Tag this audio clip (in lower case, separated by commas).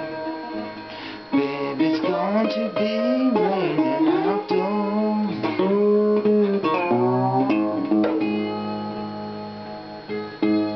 musical instrument, acoustic guitar, guitar, plucked string instrument, music, tapping (guitar technique)